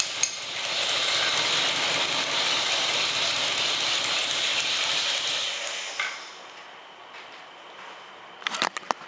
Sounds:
Engine

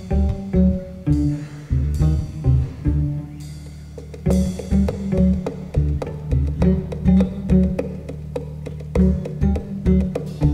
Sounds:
Music, Orchestra

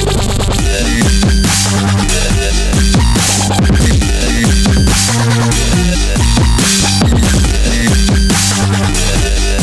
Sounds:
Music, Drum and bass

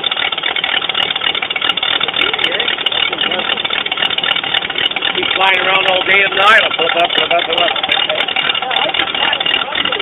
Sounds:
Engine, Speech

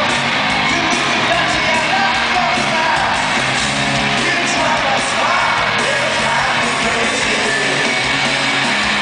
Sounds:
Rock and roll, Music

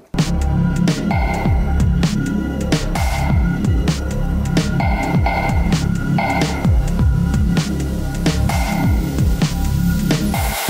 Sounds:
Electric guitar, Guitar, Musical instrument, Music

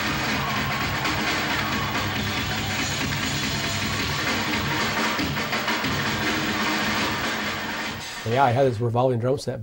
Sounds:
Music, Drum, Drum kit, Musical instrument, Speech

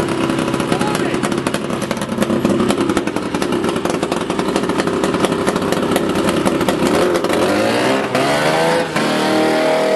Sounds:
Speech

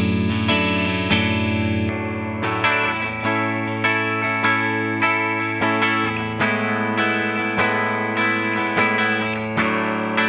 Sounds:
Music

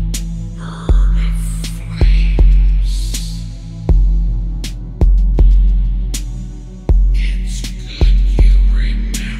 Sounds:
Music

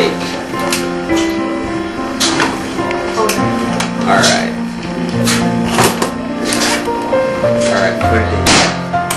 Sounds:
Music, Speech

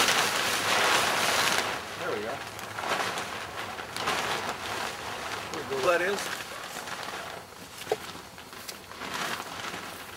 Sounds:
Speech

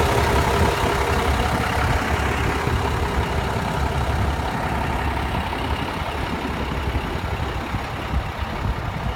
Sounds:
Vehicle, Bus, driving buses, Engine starting, Engine, Accelerating

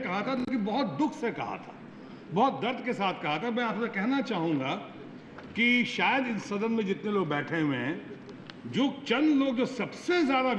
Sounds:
Speech, Male speech, monologue

